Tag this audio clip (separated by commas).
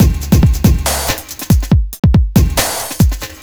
Musical instrument, Music, Percussion, Drum kit